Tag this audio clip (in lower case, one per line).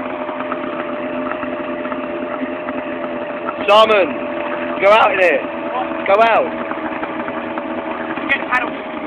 boat
motorboat